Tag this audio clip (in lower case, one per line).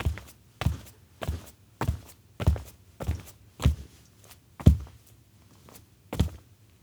walk